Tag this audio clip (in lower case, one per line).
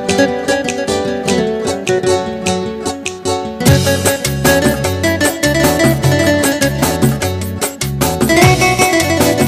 music